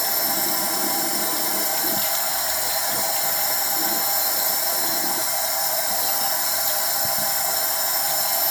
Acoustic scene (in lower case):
restroom